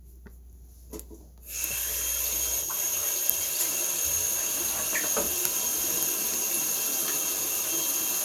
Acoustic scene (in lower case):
restroom